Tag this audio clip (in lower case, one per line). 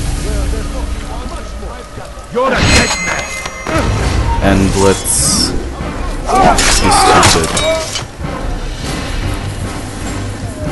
speech
music